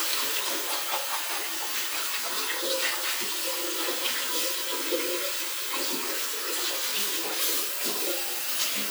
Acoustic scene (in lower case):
restroom